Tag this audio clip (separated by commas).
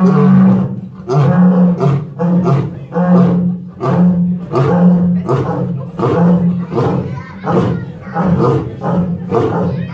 lions roaring